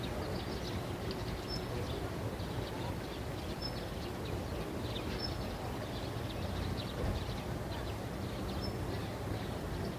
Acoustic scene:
residential area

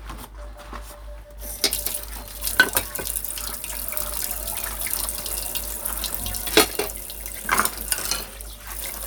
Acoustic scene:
kitchen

